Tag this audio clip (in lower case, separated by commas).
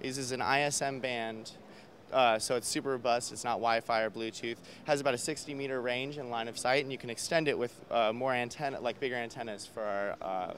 speech